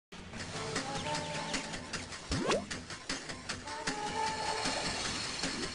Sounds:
Music

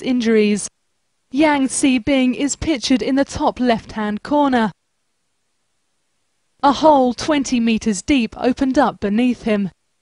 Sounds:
Speech

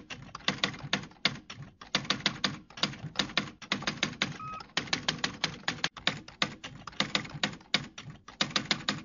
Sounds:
typing on typewriter

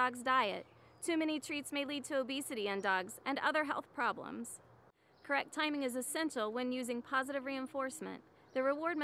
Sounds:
Speech

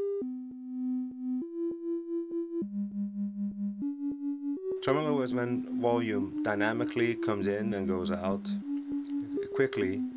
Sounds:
Speech, Music, Synthesizer

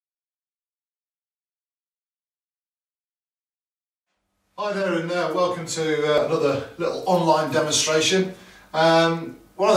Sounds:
Speech

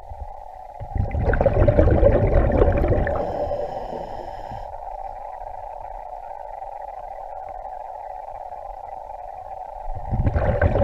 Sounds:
scuba diving

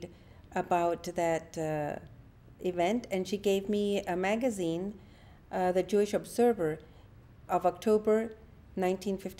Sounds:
Speech

